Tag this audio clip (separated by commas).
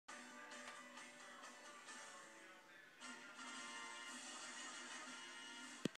Television, Music